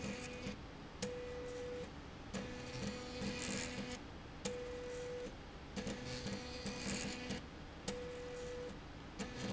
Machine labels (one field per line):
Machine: slide rail